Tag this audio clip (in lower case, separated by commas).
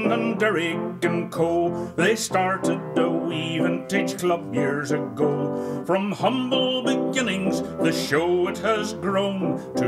male singing, music